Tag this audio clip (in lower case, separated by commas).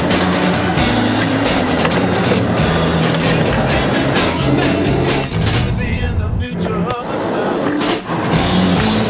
skateboard, music